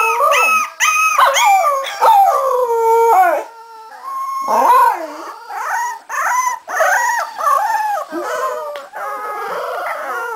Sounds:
Animal, Domestic animals, Dog

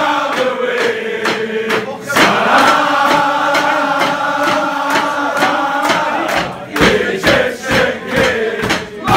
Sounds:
singing choir

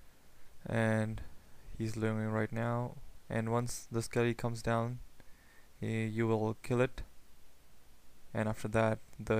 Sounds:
Speech, Narration

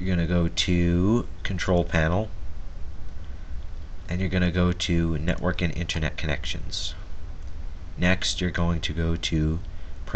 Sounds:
Speech

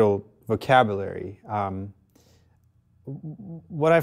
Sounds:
Speech

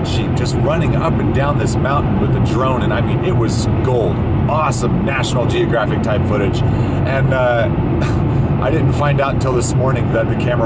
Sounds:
Speech

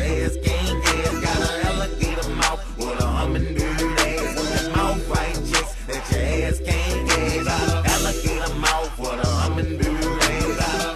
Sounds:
Music

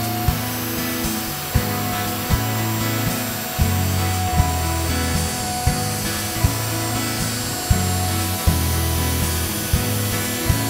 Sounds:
planing timber

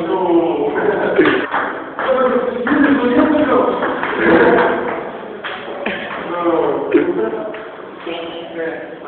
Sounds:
Speech

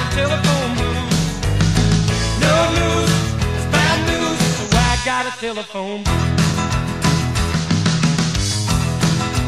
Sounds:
Blues, Music

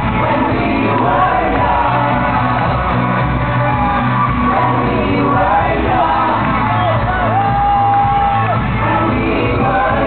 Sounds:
Music, Speech, Singing

